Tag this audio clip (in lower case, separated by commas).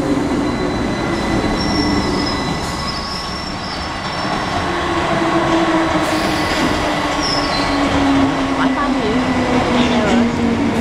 vehicle, speech, underground, rail transport, train